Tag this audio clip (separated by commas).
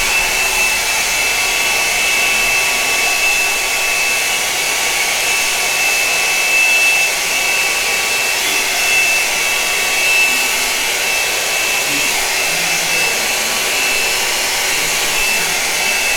Domestic sounds